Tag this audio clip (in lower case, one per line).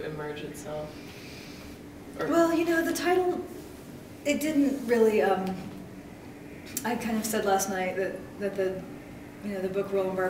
speech